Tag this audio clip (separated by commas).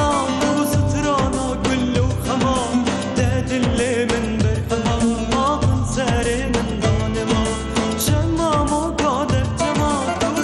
Music